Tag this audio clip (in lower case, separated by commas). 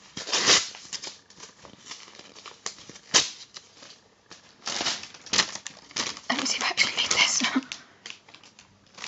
ripping paper